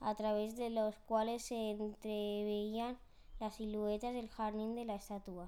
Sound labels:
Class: speech